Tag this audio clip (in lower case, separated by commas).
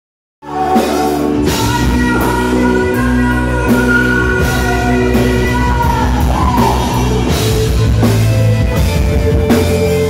music, pop music, singing